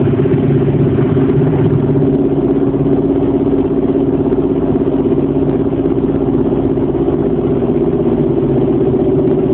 Engines revving idle